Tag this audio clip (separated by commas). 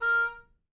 woodwind instrument, Music, Musical instrument